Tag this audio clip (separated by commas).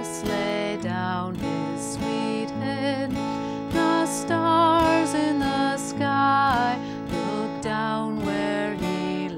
Musical instrument, Acoustic guitar, Strum, Guitar, Music, Plucked string instrument